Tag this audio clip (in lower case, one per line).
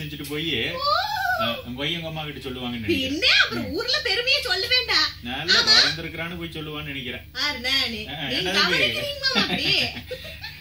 speech